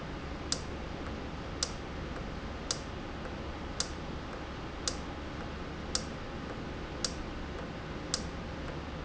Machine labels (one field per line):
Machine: valve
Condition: normal